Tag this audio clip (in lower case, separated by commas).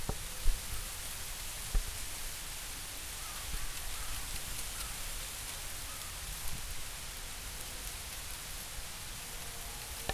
wind